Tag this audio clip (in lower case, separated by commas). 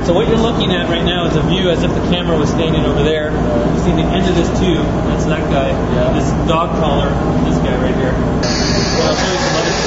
speech